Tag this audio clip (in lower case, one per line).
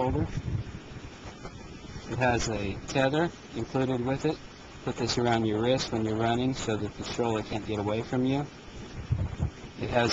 speech